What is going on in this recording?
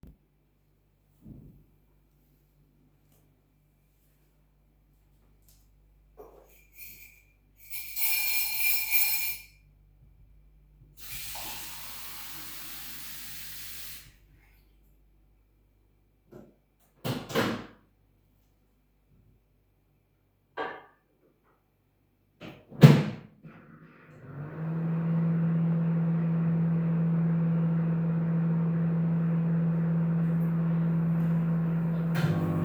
Person mixes something in a cup with a spoon, then adds some water, and puts the cup in a microwave.